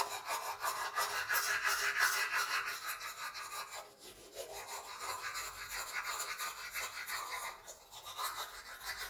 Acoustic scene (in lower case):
restroom